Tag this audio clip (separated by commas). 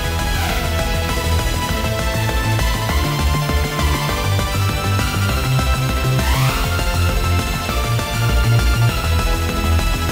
Music